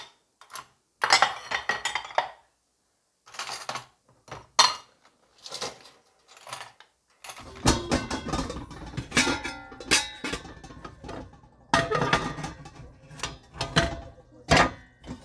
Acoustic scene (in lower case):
kitchen